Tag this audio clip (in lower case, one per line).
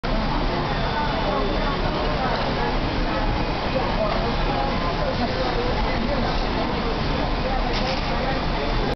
speech